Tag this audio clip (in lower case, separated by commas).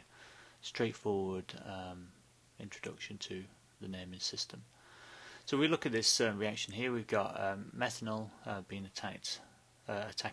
speech